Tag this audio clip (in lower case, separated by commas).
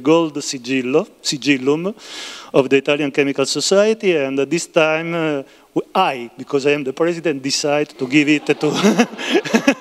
speech